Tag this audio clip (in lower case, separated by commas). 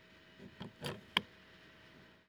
motor vehicle (road), car, vehicle